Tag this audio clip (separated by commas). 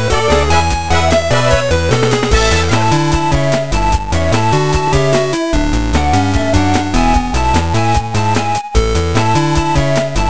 Music, Video game music